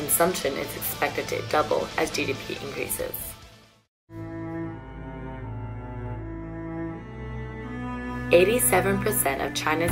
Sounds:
Speech, Music

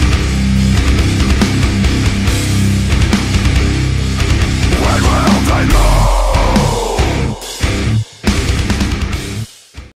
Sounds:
Music

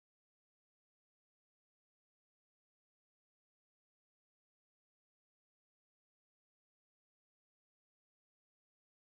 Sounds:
playing harmonica

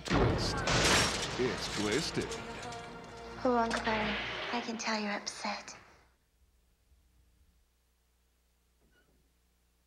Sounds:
Music, Speech, inside a large room or hall

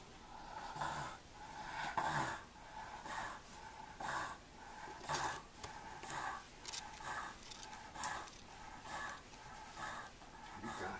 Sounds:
dog growling

